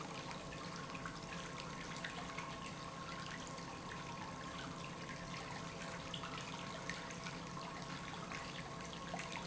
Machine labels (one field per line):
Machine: pump